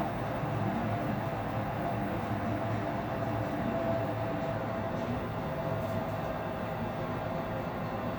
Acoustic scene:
elevator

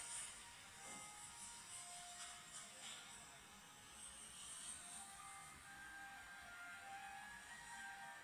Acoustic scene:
cafe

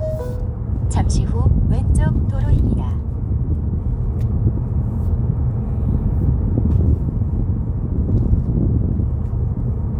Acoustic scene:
car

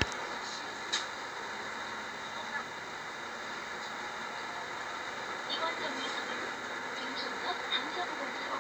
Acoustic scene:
bus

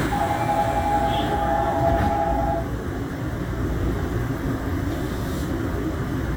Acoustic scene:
subway train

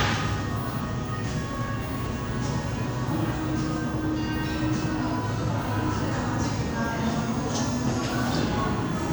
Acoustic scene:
cafe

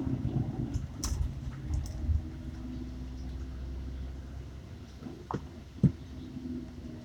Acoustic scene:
bus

